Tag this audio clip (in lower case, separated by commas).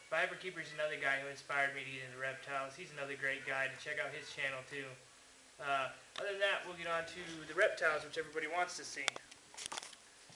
speech